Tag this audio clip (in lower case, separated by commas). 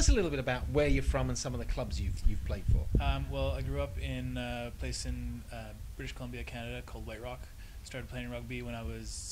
speech